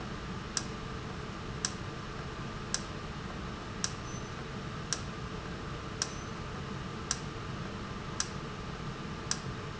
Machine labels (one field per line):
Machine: valve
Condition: normal